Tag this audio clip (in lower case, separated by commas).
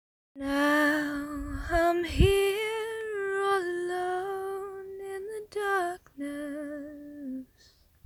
female singing, singing, human voice